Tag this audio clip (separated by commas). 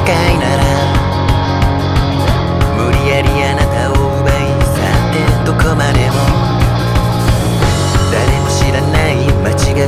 Music